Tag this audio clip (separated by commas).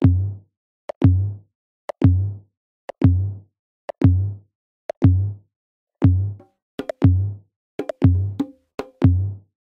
Music, Techno